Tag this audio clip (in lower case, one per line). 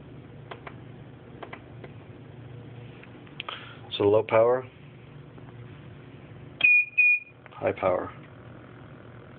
speech